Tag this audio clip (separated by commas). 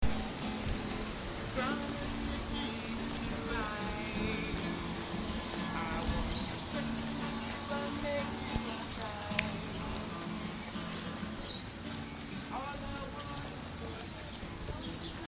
Singing, Animal, Human voice, Bird, Wild animals